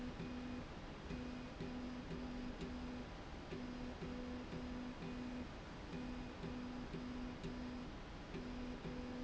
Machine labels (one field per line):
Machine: slide rail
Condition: normal